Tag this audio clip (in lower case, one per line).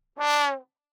brass instrument
musical instrument
music